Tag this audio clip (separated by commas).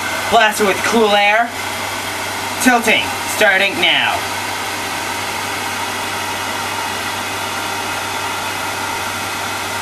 Speech